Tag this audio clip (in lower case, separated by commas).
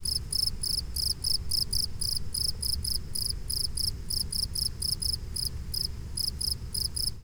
wild animals, animal, cricket, insect